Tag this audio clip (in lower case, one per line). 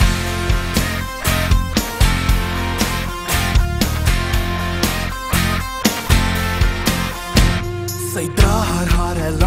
music